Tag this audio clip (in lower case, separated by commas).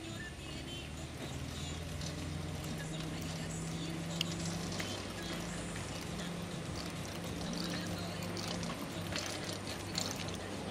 speech, vehicle